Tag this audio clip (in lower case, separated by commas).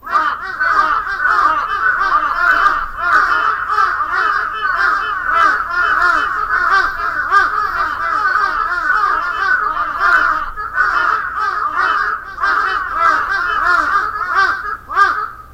wild animals, crow, bird, animal